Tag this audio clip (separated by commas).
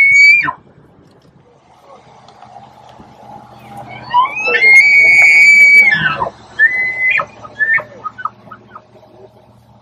elk bugling